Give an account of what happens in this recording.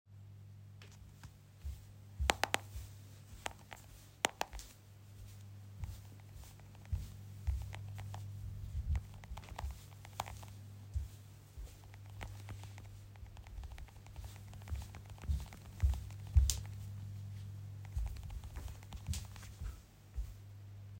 I walk aroung the room and type on my phone at the same time.